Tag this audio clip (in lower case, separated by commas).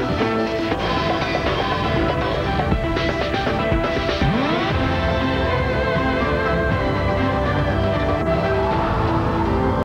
music